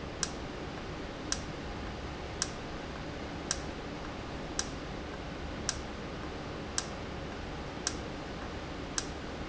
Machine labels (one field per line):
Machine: valve